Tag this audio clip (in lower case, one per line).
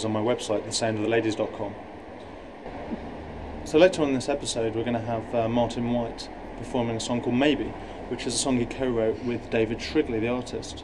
speech